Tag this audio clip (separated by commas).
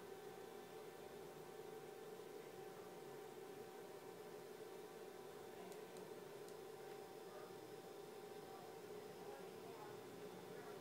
Speech